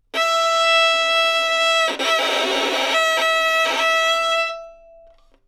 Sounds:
Bowed string instrument, Music, Musical instrument

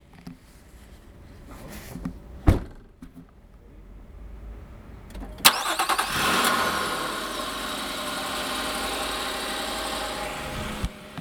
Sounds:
Human voice, Vehicle, Idling, Male speech, Motor vehicle (road), Speech, Door, Car, home sounds, Engine, Engine starting, Slam

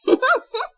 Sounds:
Giggle, Human voice, Laughter

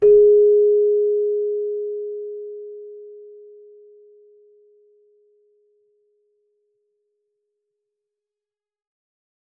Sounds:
Music, Keyboard (musical), Musical instrument

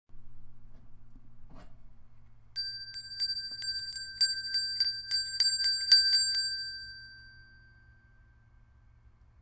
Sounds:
Bell

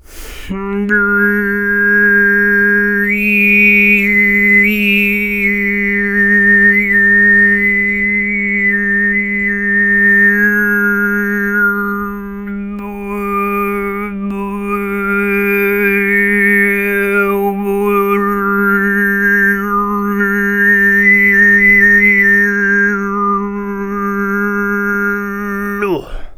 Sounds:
Singing, Human voice

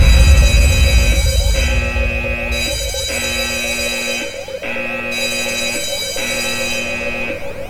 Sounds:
Alarm

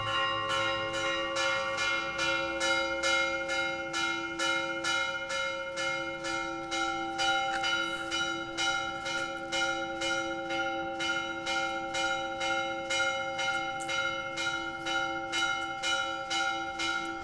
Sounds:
Church bell, Bell

